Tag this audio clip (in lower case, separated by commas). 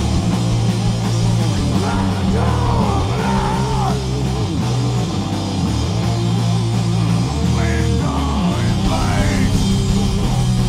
singing, inside a large room or hall, music